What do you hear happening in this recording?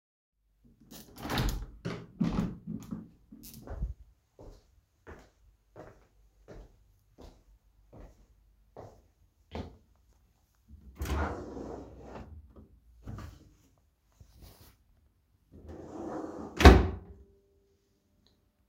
I opened the door and walked to the drawer, then i opened it grabbed a shirt and closed it again